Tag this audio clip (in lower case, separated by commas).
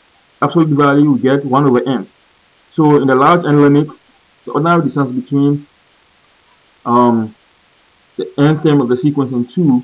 narration